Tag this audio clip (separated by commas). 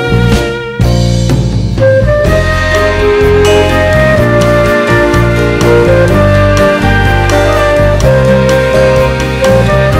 Tender music, Music